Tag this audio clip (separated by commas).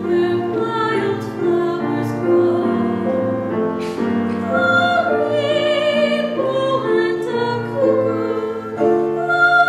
Music, Female singing